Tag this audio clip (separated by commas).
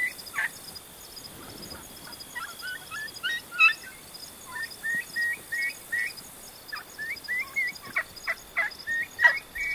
turkey gobbling